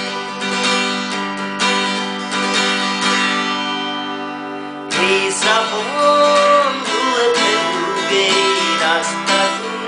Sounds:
music
plucked string instrument
strum
musical instrument
guitar

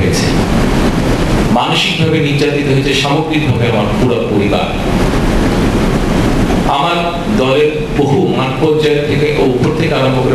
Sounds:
male speech
monologue
speech

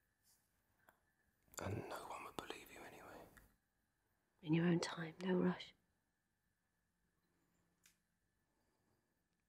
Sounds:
whispering
people whispering

